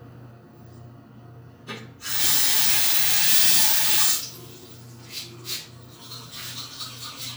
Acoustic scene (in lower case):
restroom